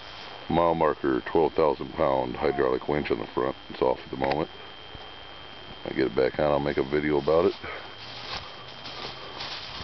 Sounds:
walk, speech

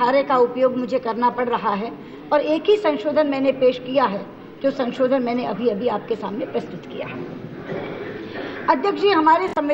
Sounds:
female speech, monologue, speech

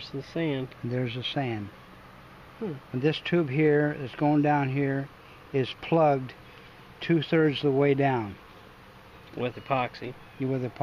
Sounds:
inside a small room, speech

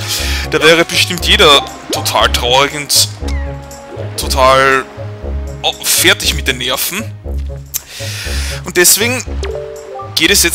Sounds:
music, speech

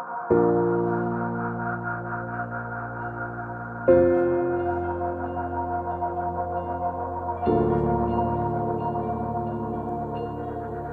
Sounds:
music, ambient music

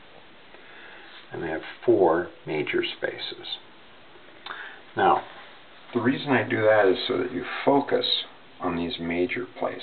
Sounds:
speech

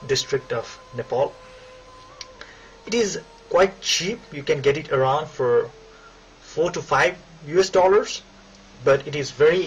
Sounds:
speech

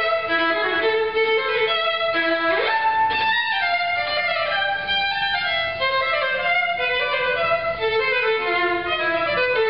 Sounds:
musical instrument, violin, music

